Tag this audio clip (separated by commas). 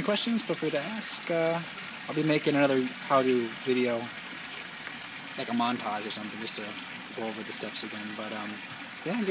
Speech